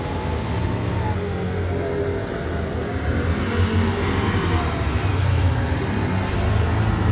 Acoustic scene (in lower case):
street